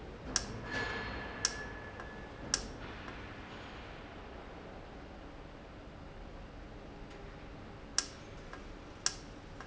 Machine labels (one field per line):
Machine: valve